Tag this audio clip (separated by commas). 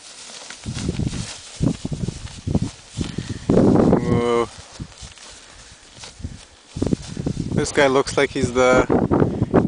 Animal, horse neighing, Speech, Horse, Neigh